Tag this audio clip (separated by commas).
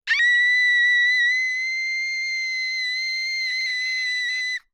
Human voice, Screaming